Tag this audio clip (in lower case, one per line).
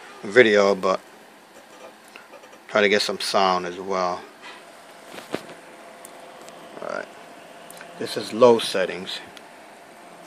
speech